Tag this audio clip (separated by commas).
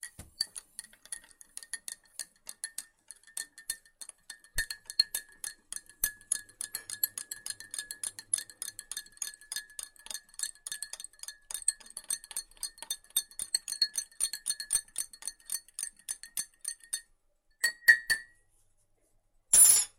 Liquid